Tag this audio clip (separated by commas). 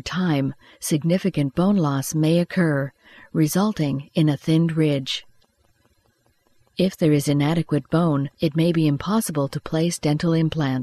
Speech